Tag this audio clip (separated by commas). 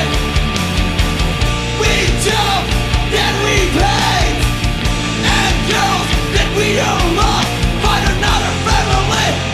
Music